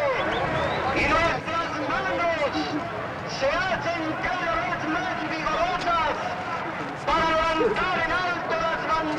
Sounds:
Speech

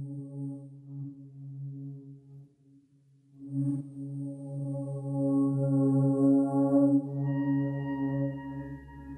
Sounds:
Music

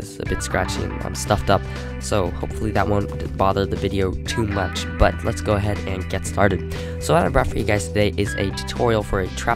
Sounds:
Music, Speech

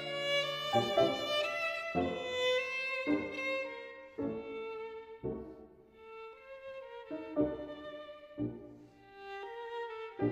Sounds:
Musical instrument, Violin, Music

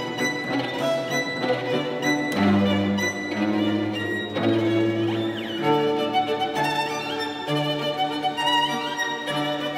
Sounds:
Musical instrument, fiddle, Music

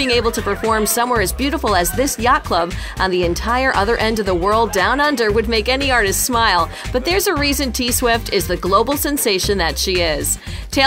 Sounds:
Speech, Music

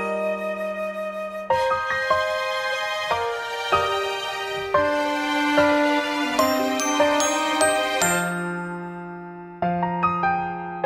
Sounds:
Music

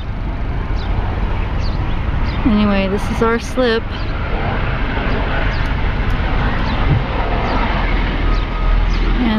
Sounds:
Speech, Vehicle

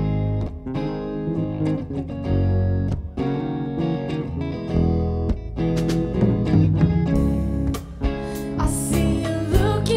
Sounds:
Bass guitar, Singing, Music

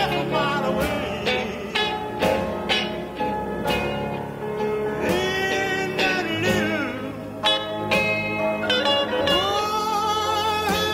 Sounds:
Country, Music

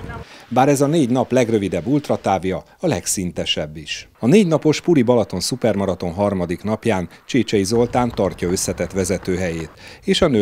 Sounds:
Run, Speech, outside, rural or natural

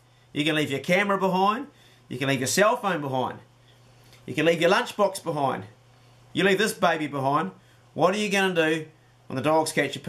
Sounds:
Speech

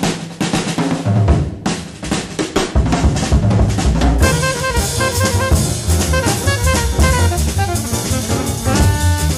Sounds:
Music, Drum roll, Drum

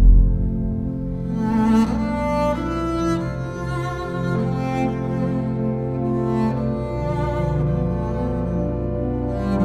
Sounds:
playing double bass

